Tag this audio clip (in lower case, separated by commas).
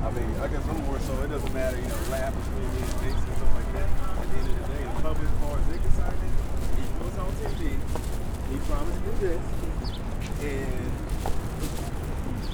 animal, bird, wild animals, bird vocalization, chirp